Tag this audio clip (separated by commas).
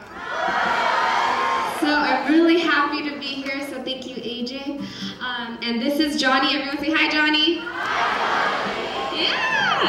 Speech